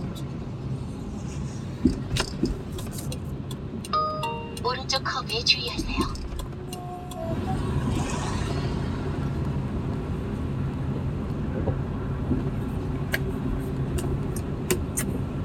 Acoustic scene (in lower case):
car